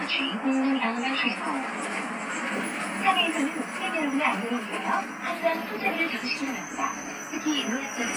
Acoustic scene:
bus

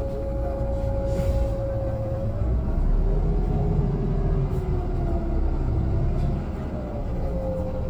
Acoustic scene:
bus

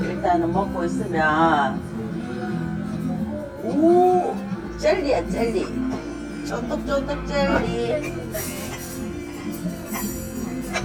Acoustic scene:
restaurant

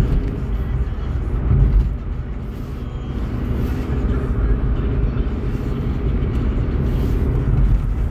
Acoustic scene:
car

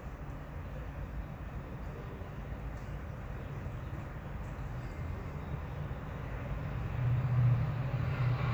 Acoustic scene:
residential area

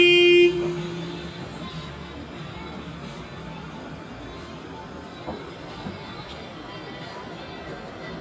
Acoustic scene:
street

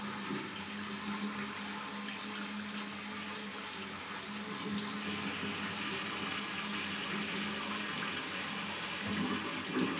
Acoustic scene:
restroom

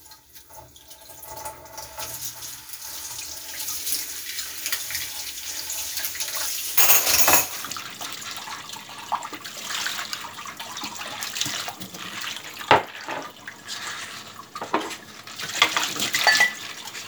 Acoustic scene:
kitchen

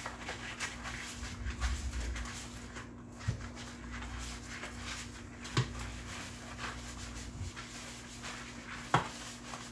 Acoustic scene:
kitchen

